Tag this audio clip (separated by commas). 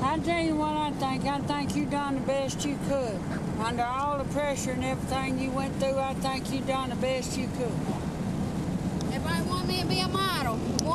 Speech